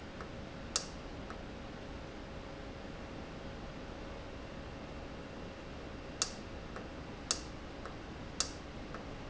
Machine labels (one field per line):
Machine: valve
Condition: normal